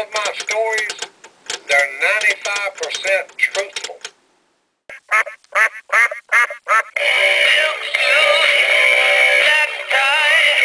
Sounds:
music, quack, speech

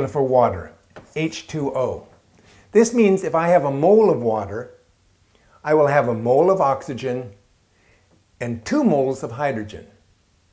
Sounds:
inside a small room, speech

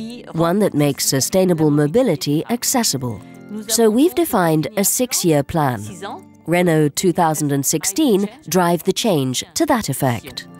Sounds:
speech, music

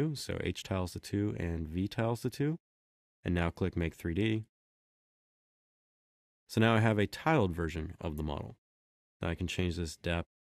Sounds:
inside a small room, speech

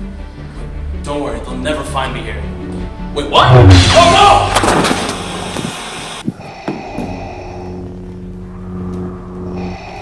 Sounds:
speech, music

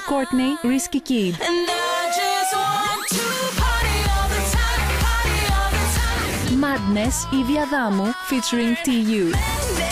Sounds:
music, speech

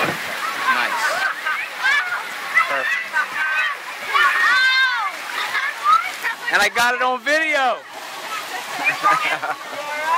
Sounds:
speech, water

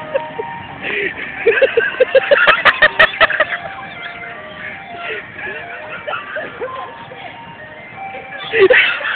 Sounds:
music, ice cream truck, vehicle, motor vehicle (road), speech

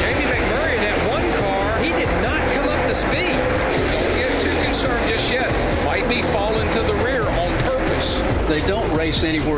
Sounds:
speech, music

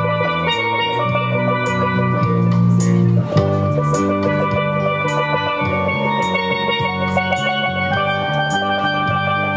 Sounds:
playing steelpan

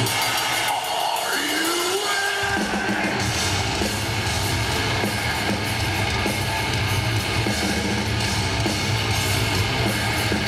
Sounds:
heavy metal, music, song, singing

